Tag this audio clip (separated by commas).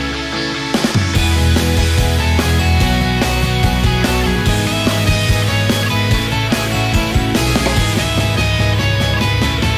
Music